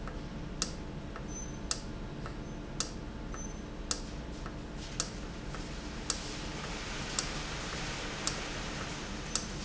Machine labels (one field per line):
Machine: valve